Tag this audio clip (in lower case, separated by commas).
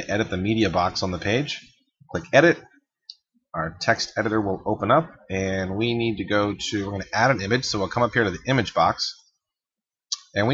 speech